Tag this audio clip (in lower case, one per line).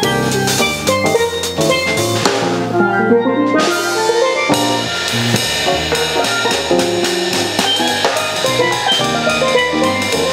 playing steelpan